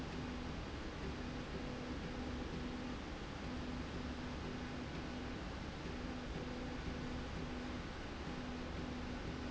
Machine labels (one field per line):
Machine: slide rail